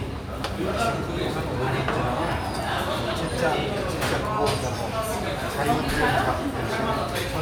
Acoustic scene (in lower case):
restaurant